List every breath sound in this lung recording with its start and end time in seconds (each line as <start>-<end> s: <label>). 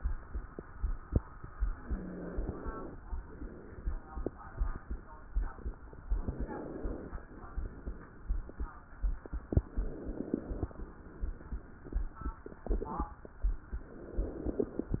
1.69-2.94 s: inhalation
1.76-2.41 s: wheeze
3.06-4.16 s: exhalation
6.15-7.25 s: inhalation
7.27-8.37 s: exhalation
9.60-10.70 s: inhalation
10.76-11.86 s: exhalation
13.95-15.00 s: inhalation